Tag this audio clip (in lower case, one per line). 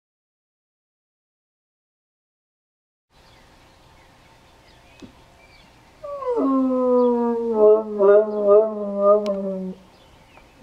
dog baying